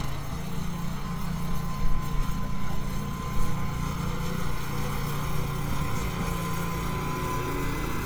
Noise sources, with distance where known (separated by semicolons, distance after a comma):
small-sounding engine, near